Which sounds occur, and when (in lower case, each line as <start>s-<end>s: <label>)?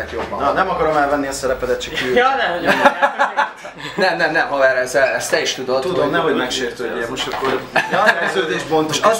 0.0s-9.1s: background noise
0.0s-3.5s: male speech
1.9s-3.9s: laughter
3.9s-7.6s: male speech
7.7s-8.9s: laughter
8.1s-9.1s: male speech